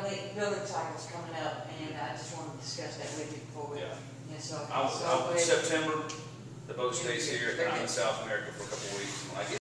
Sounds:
speech

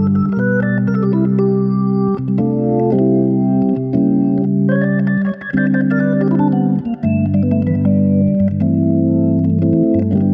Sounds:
playing hammond organ

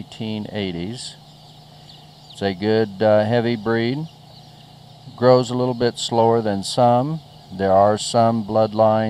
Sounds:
speech

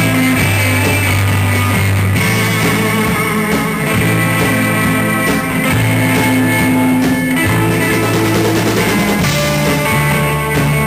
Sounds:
music, musical instrument, plucked string instrument, guitar, electric guitar

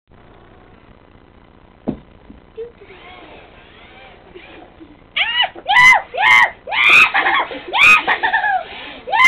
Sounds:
speech, child speech

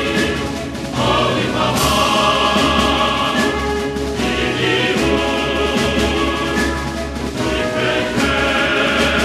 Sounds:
music

